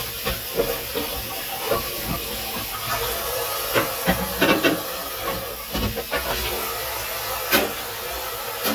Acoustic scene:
kitchen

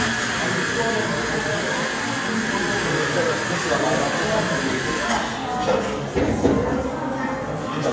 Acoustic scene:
cafe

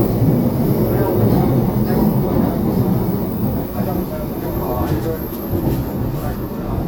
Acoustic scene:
subway train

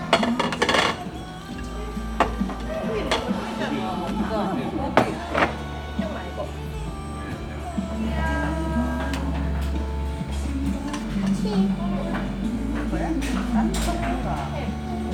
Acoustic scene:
crowded indoor space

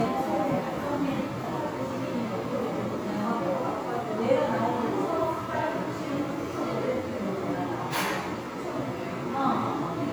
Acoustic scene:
crowded indoor space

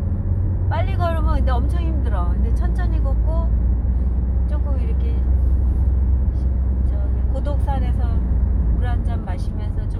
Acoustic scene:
car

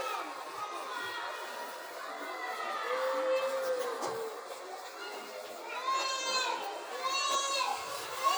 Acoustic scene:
residential area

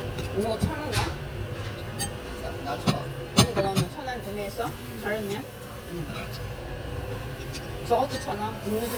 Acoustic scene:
restaurant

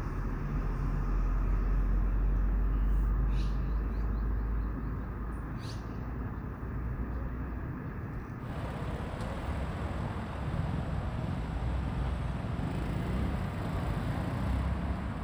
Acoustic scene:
street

